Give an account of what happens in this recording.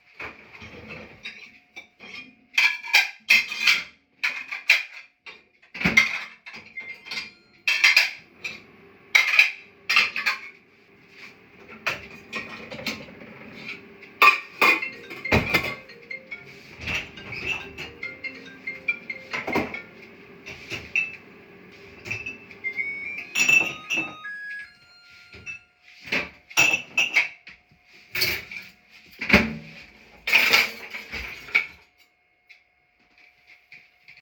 While I opened, closed and started the microwave, my mom put some dishes inside of the dish washer. Suddenly my phone rang. I pulled out my phone and dismissed the alarm. Then the microwave finished.